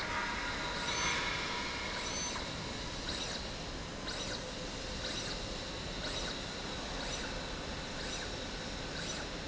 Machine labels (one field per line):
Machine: slide rail